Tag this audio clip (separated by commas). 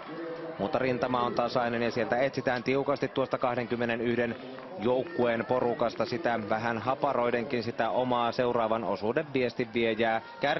Speech, outside, urban or man-made